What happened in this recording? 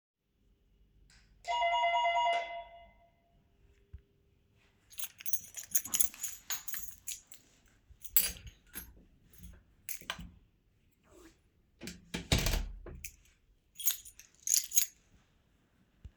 the door is open, i ring the door bell, enter the apartement, and close the door, while handling the keychain and putting it on the table.